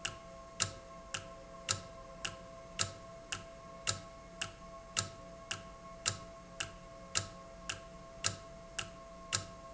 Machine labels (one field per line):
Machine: valve